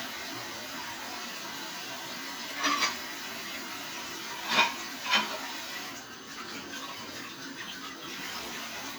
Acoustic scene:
kitchen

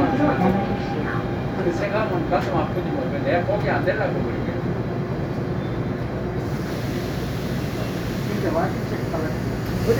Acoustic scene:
subway train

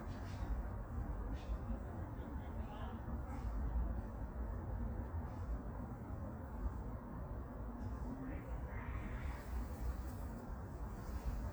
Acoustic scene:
park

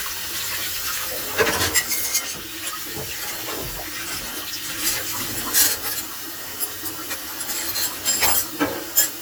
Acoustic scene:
kitchen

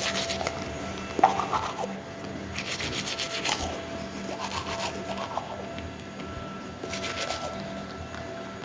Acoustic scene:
restroom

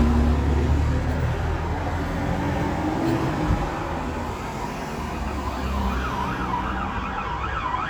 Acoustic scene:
street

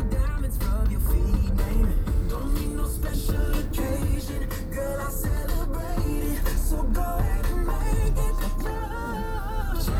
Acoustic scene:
car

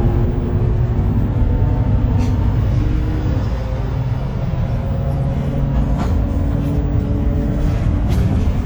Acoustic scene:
bus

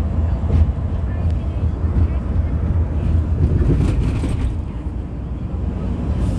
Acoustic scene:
bus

